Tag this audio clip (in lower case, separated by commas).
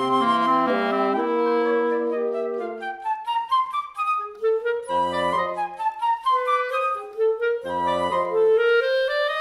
wind instrument, playing clarinet, musical instrument, clarinet, music, brass instrument, flute